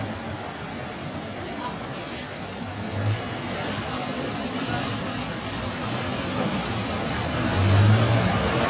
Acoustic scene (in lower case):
street